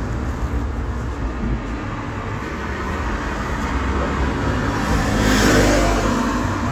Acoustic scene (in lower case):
street